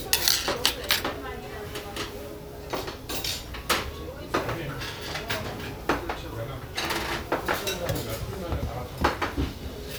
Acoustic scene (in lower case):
restaurant